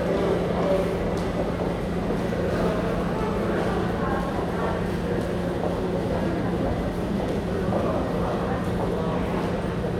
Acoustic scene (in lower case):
subway station